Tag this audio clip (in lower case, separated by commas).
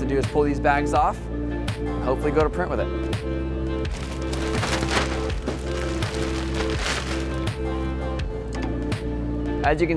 music, speech